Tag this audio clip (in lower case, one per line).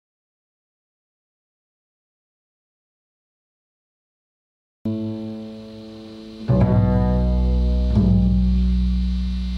bowed string instrument
pizzicato
double bass
cello